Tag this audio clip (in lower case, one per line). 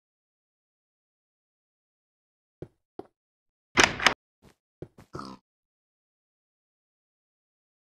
door